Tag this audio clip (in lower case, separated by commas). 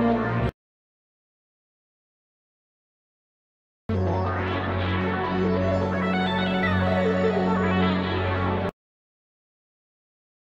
tapping guitar